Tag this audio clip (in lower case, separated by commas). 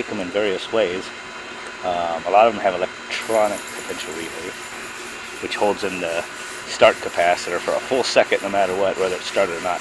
speech